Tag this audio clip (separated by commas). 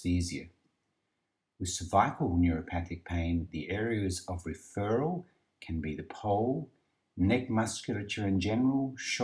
Speech